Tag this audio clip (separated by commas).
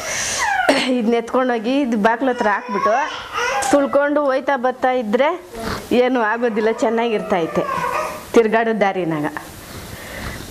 Speech